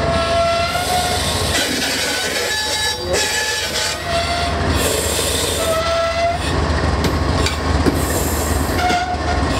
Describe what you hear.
A large train comes to a screeching fault